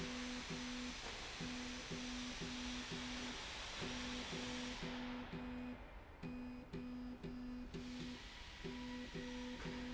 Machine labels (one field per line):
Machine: slide rail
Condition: normal